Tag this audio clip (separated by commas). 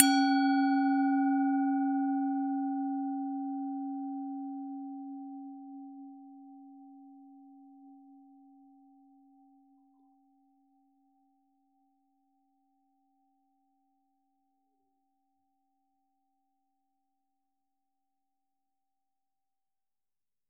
Musical instrument, Music